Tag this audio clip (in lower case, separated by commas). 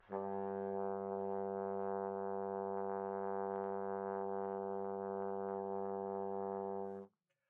music, brass instrument, musical instrument